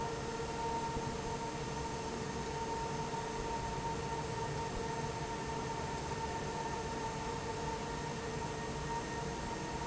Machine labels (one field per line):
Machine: fan